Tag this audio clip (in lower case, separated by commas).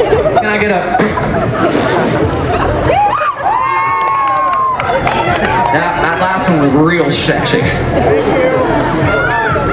speech, whoop